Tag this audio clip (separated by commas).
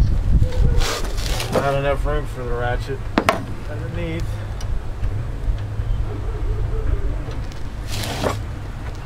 Speech